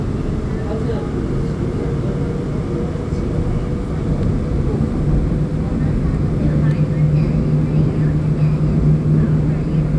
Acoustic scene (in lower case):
subway train